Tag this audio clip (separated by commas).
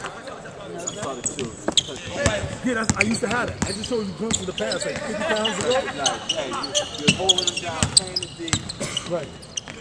Run, Speech